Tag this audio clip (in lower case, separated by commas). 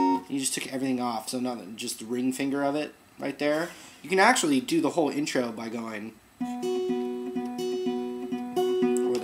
musical instrument, guitar, acoustic guitar, plucked string instrument, music, speech